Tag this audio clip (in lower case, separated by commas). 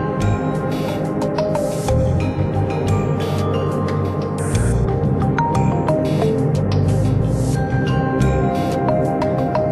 tender music, music